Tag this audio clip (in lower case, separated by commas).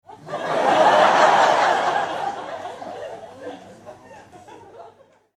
laughter, human voice, human group actions, crowd